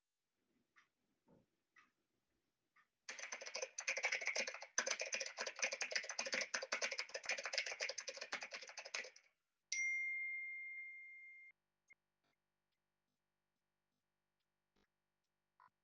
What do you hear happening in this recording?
I was typing on my laptop keyboard, then my phone rang (notification)